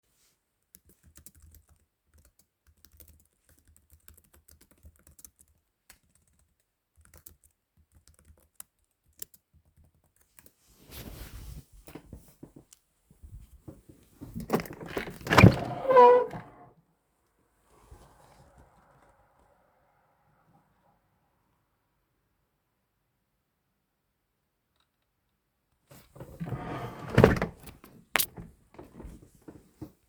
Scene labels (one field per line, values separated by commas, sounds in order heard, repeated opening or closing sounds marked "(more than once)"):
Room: living room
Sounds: keyboard typing, window (more than once)